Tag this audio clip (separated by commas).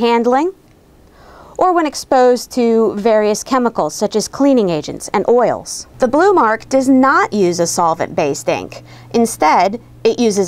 Speech